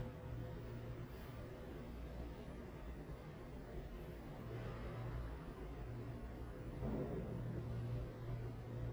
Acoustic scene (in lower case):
elevator